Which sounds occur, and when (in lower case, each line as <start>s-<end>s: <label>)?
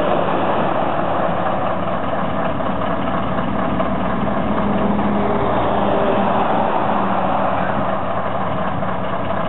0.0s-9.4s: heavy engine (low frequency)